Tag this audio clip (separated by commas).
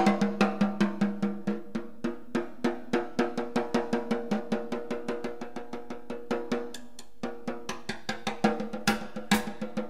inside a large room or hall, Music